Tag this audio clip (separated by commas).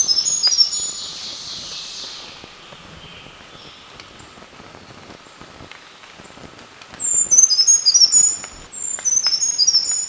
wood thrush calling